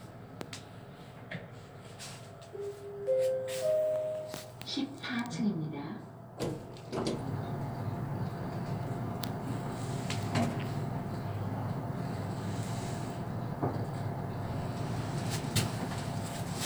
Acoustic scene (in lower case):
elevator